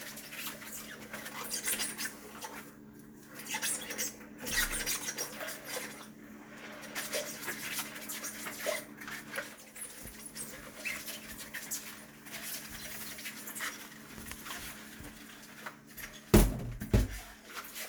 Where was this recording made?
in a kitchen